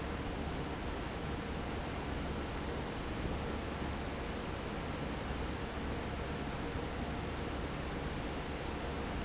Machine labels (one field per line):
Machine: fan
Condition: normal